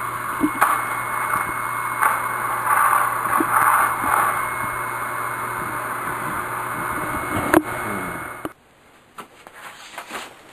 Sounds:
Vacuum cleaner

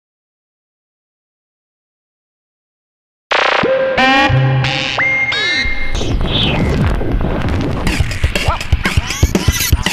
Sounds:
Silence, Music

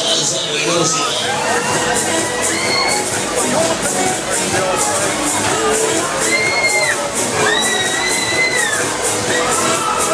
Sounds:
Music, Speech

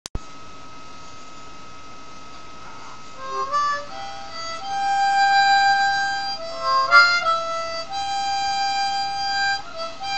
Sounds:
playing harmonica

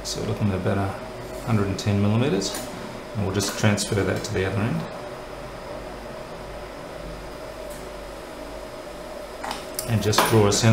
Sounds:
Speech

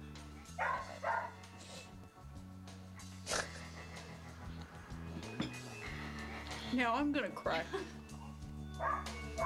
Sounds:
Music, Bark, Speech

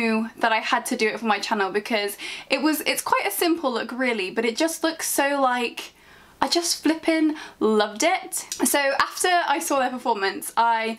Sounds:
Speech

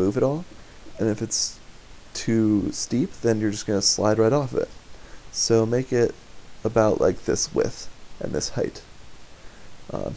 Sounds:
Speech

